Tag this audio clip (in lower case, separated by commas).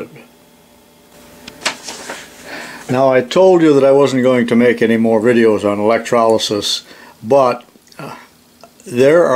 inside a small room, speech